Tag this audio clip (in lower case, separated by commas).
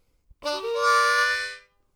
music, musical instrument, harmonica